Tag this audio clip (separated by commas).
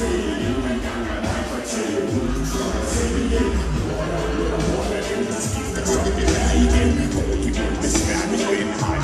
Electronic music, Music, Dubstep